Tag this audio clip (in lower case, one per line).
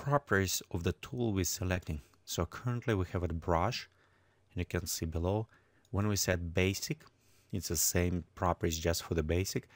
speech